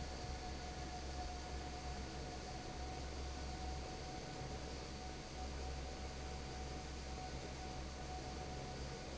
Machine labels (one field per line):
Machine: fan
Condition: normal